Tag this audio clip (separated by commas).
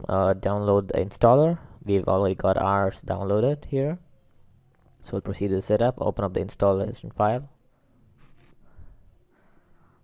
Speech